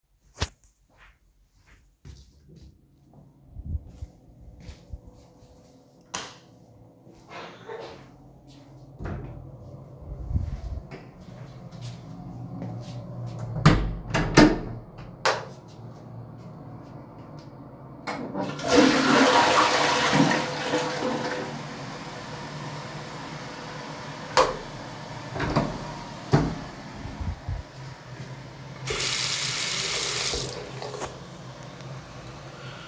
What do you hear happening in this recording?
I walked to my bathroom opened the door, turned on the light and the opened the door of toilet, switched on the light. Then I flushed the toilet turned off the light again and then washed my hands.